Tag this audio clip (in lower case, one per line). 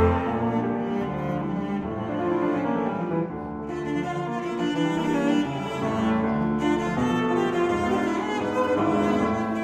double bass
musical instrument
playing double bass
cello
music
string section
piano
bowed string instrument
classical music